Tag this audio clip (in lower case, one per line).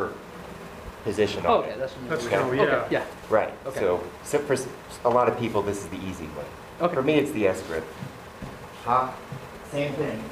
inside a large room or hall
speech